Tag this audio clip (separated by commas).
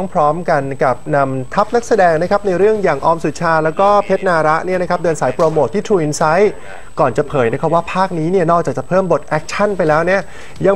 Speech